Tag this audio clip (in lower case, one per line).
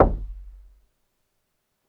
knock
percussion
door
musical instrument
wood
domestic sounds
music